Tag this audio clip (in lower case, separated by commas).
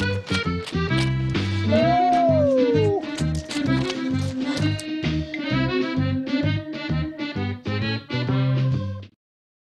music